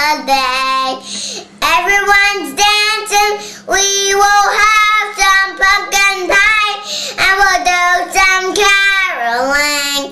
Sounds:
Child singing

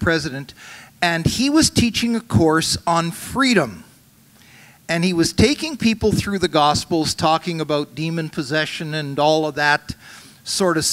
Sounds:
Speech

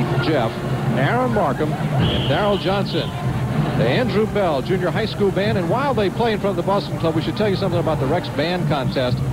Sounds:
Speech

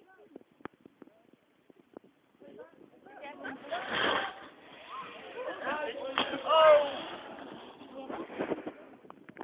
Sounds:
Speech

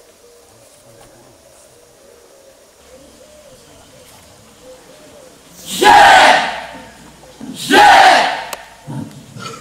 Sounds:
Coo, bird call, Bird, Pigeon

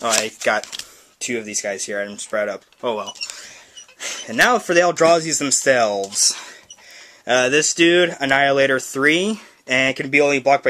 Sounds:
Speech

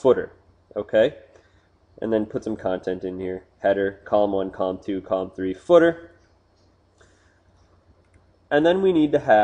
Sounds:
Speech

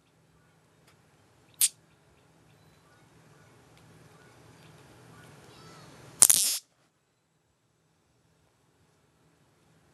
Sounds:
Music, Zing

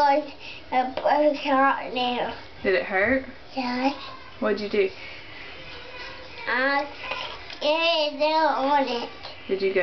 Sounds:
Speech

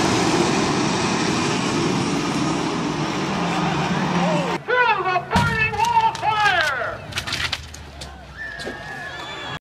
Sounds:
Engine, Truck

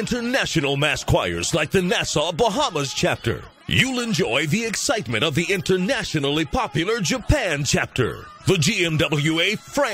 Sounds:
Gospel music, Speech, Music

